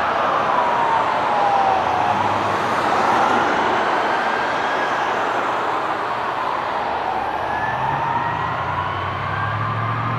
A siren heard in the distance of an emergency vehicle